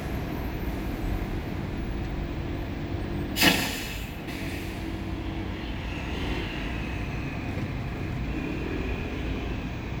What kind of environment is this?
street